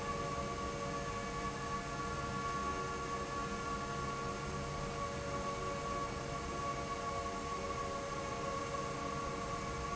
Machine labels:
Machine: fan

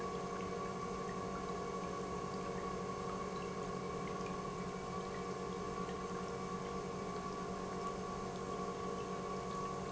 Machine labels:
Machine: pump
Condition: normal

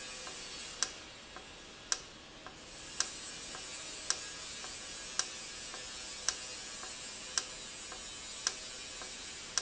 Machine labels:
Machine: valve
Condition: normal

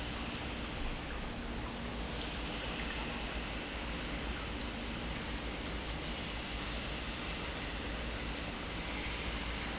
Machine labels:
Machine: pump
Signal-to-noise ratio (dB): -6 dB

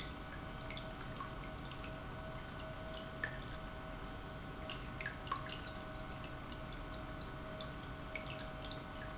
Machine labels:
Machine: pump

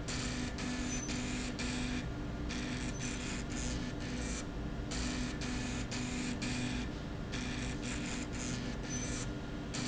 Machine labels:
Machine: slide rail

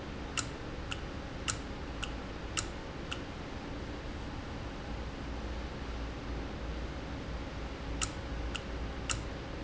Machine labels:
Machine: valve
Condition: normal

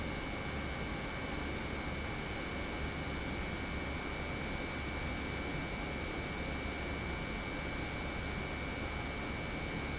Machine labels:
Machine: pump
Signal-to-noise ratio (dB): -6 dB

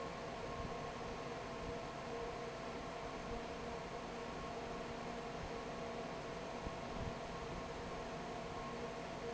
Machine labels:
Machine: fan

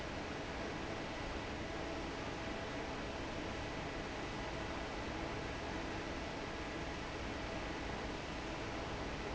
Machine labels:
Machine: fan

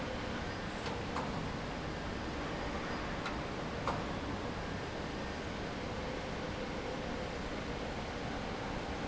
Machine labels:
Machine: fan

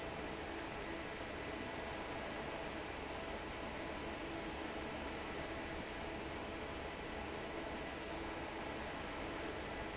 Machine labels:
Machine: fan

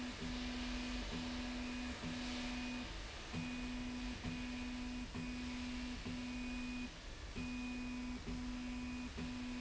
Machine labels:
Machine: slide rail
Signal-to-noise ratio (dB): 6 dB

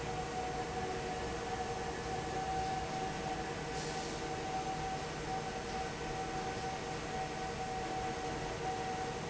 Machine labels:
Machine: fan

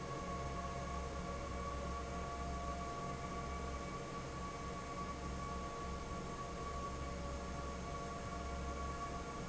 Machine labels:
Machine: fan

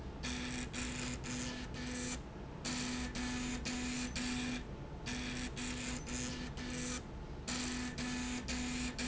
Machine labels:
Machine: slide rail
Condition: abnormal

